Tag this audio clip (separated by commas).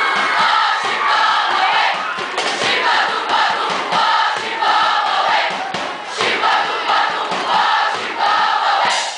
Music, people cheering, Choir, Cheering, Singing